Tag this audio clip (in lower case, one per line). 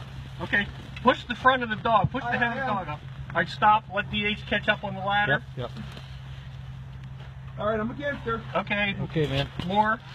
speech